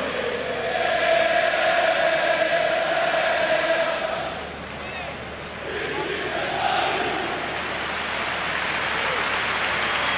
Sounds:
Speech

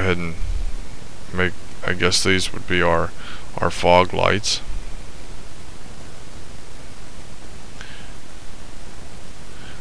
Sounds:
Speech

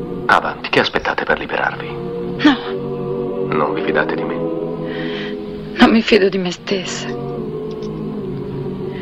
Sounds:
Speech, Music

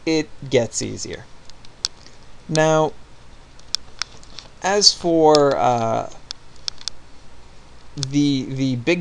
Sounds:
Speech

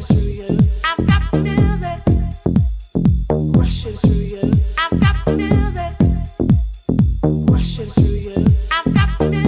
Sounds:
Music

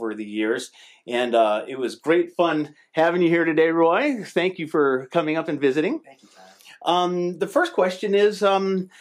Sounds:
Speech

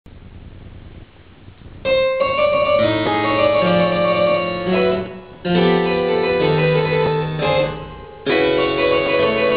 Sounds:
Music, Harpsichord, Keyboard (musical)

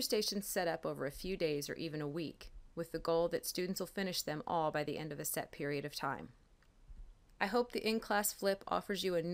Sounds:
Speech

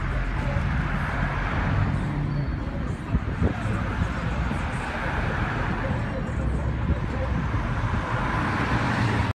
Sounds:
Speech, Car, Vehicle

